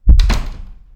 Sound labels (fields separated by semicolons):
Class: door; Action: closing; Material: wooden